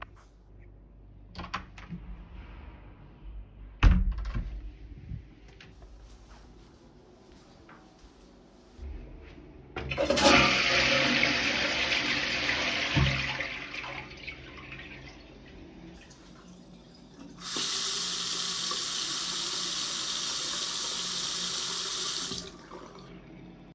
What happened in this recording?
I opened door to the bathroom then flushed the toilet. After that washed my hands